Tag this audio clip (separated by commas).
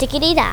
Singing, Human voice